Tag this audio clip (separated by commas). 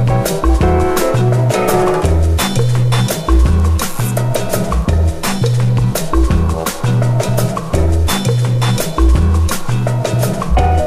Music